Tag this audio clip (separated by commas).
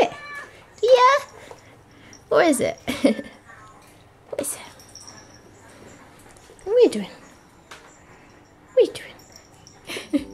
Speech, pets, Animal